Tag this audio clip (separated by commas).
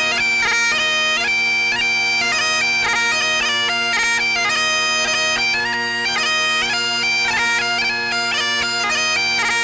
Bagpipes, playing bagpipes, Musical instrument, Music